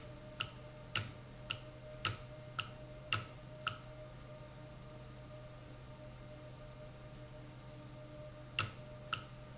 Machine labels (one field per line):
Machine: valve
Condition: normal